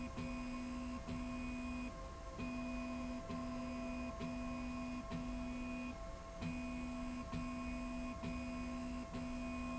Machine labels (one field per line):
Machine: slide rail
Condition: normal